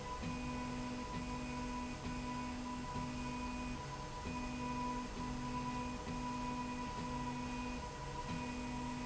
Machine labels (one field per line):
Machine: slide rail